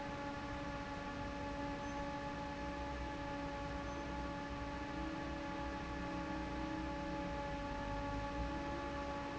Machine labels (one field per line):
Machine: fan